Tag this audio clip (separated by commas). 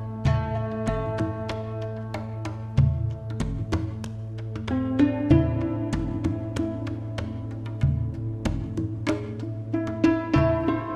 Music, New-age music